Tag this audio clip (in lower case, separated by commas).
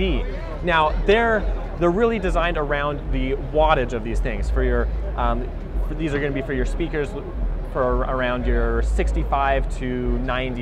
speech